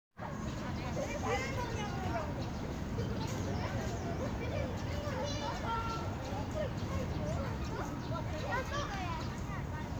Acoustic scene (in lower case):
park